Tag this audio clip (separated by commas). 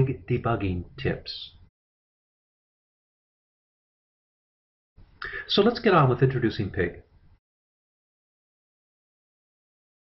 Speech